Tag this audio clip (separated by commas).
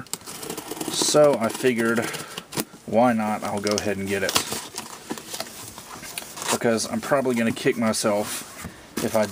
inside a small room, Speech